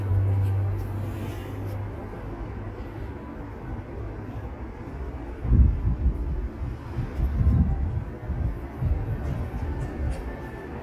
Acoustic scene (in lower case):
street